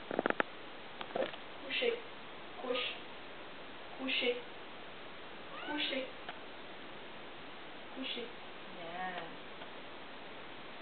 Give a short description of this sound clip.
Female speech along with a cat's meow